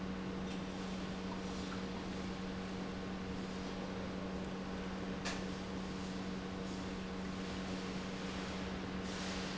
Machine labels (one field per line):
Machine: pump